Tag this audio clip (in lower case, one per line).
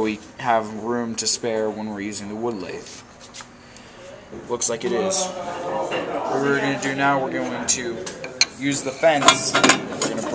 speech